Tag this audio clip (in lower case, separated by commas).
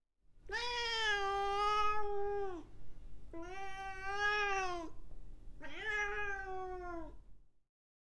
animal